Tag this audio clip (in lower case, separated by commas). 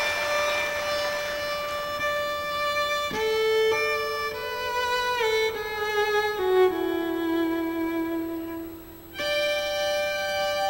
music, bowed string instrument